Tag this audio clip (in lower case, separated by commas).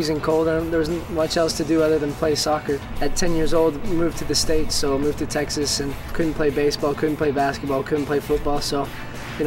speech, music